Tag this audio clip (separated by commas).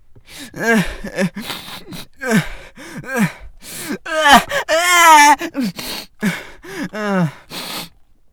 sobbing, Human voice